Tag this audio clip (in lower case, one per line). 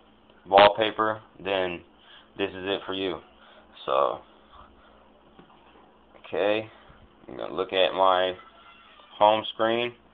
speech